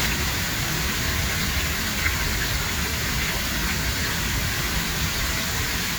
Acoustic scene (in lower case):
park